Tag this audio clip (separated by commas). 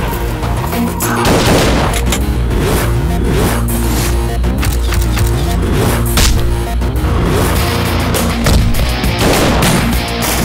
Music